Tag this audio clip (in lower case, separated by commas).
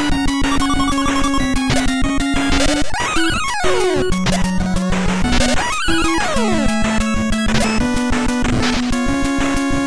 music